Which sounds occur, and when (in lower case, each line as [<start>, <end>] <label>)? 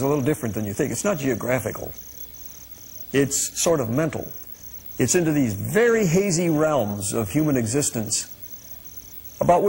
[0.01, 9.65] background noise
[0.03, 1.93] man speaking
[3.12, 4.34] man speaking
[4.92, 8.26] man speaking
[9.33, 9.65] man speaking